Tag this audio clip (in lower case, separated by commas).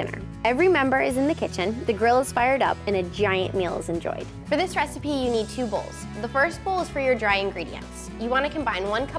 speech, music